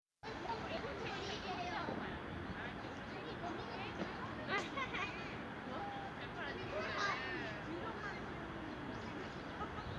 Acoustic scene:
residential area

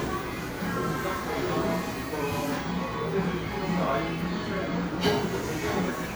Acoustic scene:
cafe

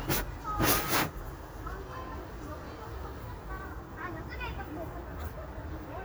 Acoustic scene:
residential area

